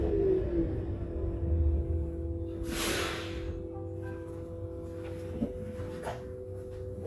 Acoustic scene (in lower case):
bus